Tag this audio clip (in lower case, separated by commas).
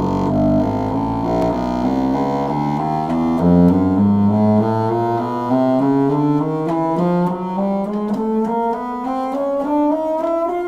playing bassoon